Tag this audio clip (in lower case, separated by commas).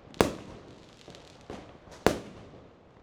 explosion, fireworks